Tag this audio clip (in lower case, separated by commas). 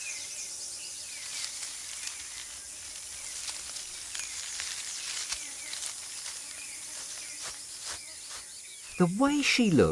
animal, speech